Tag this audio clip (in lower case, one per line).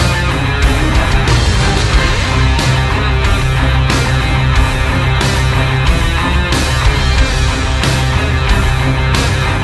music